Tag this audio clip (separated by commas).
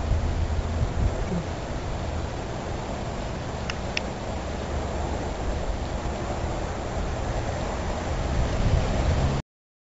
Speech